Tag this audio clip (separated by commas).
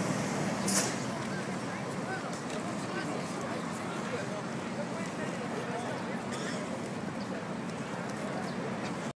Speech